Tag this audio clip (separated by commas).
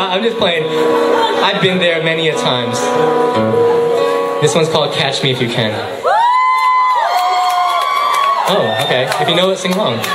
Speech, Music